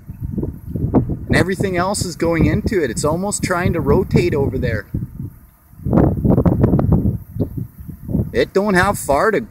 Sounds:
tornado roaring

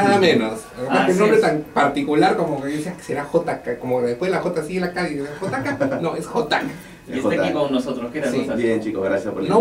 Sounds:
speech
radio

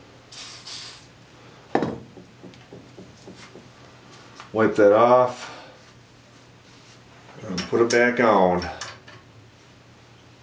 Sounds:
speech

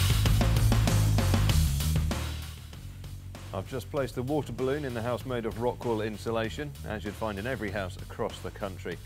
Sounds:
speech
music

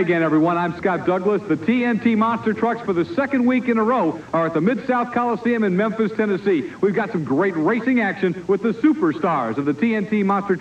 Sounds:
speech

